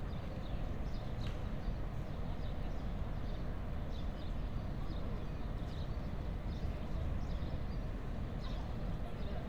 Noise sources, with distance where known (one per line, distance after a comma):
person or small group talking, far